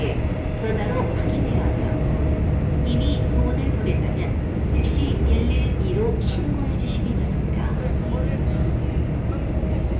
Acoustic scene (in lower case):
subway train